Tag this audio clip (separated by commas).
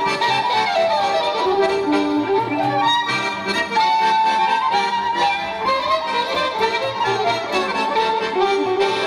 fiddle, Musical instrument, Music